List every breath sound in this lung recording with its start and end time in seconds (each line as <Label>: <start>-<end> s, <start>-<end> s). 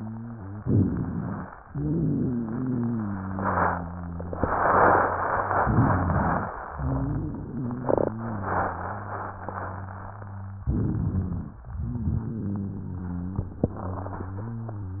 Inhalation: 0.62-1.49 s, 10.62-11.59 s
Exhalation: 1.71-4.38 s, 11.70-15.00 s
Wheeze: 1.71-4.38 s, 11.70-15.00 s
Rhonchi: 0.62-1.49 s, 10.62-11.59 s